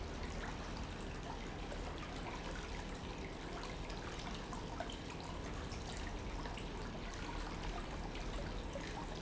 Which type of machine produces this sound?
pump